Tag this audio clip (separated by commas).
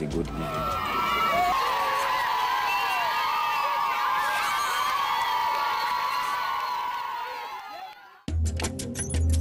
Music, Speech